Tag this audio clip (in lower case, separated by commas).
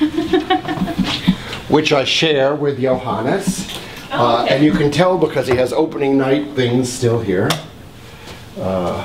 speech